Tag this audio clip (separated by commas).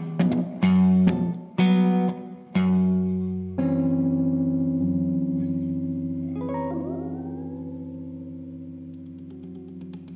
Guitar, Plucked string instrument, Music, Strum, Musical instrument